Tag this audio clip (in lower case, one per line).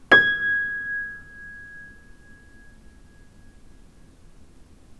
musical instrument
music
piano
keyboard (musical)